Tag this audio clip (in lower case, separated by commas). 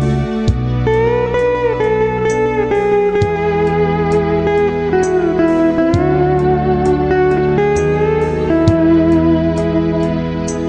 music, plucked string instrument, guitar, musical instrument